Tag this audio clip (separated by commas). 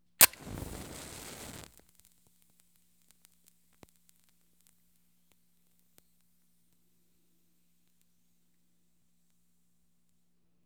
Fire